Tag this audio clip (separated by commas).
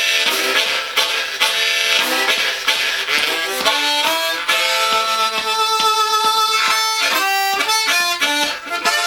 woodwind instrument, Harmonica